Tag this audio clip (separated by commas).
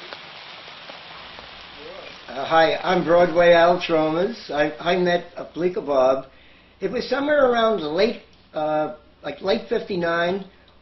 outside, rural or natural, Speech